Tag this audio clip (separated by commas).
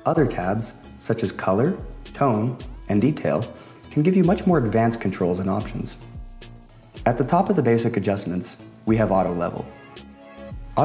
Music, Speech